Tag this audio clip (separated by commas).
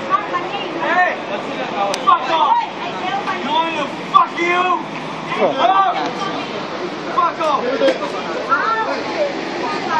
Speech